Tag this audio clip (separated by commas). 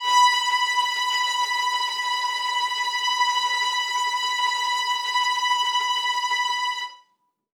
Musical instrument, Bowed string instrument, Music